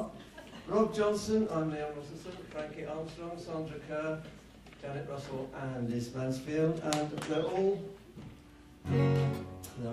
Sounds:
music, speech

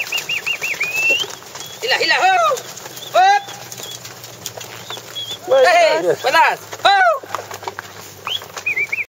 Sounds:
speech

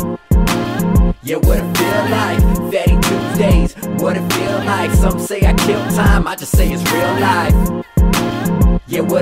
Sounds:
music, pop music

